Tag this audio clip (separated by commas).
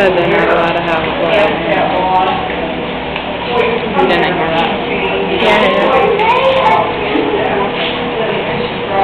Speech